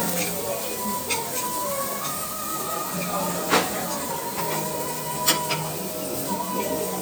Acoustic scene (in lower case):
restaurant